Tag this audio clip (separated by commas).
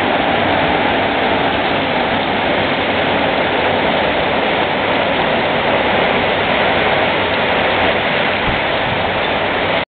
Rain on surface